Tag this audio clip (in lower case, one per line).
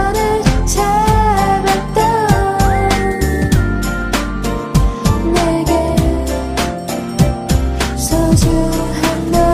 music